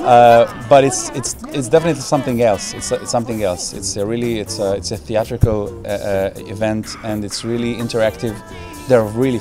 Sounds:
music
speech
female singing

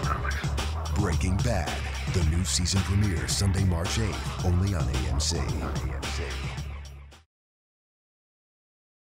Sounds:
speech
music

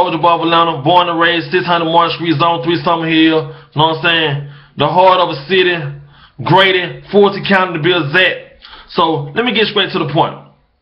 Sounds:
speech

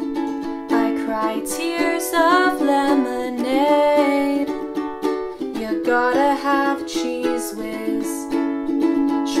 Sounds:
playing ukulele

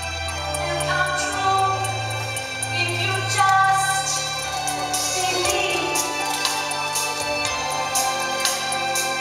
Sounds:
music
speech

